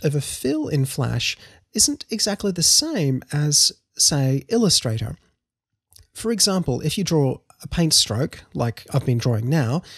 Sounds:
Speech

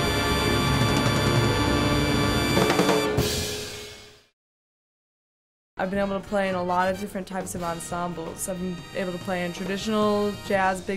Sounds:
Music, Jazz, Speech

